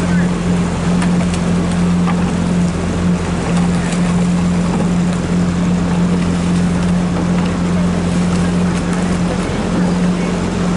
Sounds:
canoe, sailing ship, Vehicle, speedboat acceleration, Water vehicle, speedboat

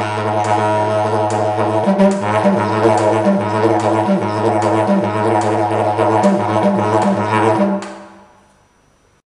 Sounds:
Music, Musical instrument, Didgeridoo

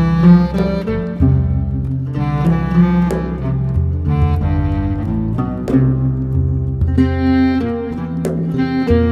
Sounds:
Music

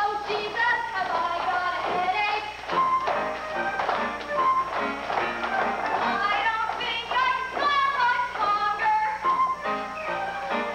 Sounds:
Music, Tap

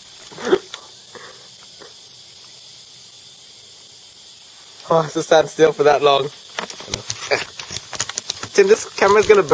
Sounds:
Speech

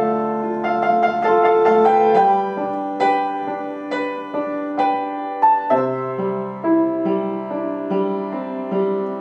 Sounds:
Music

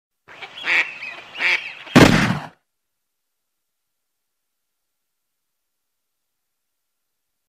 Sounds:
Animal, Quack

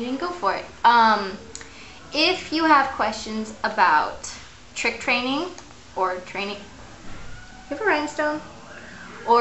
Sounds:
Speech

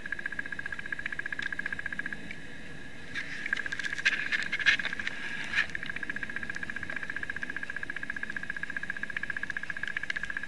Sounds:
outside, rural or natural

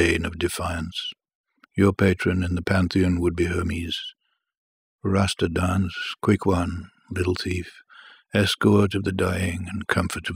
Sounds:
Speech

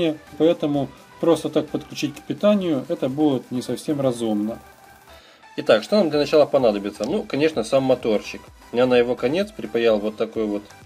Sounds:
cell phone buzzing

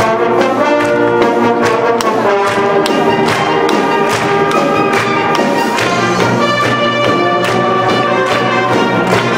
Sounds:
Music

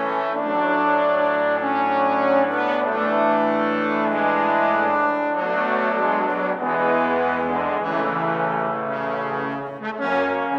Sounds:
Brass instrument, Music, Trombone

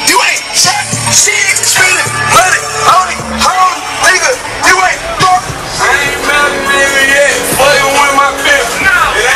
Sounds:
Music

